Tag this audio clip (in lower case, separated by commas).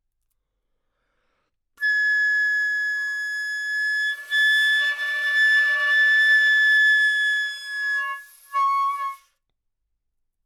music, wind instrument, musical instrument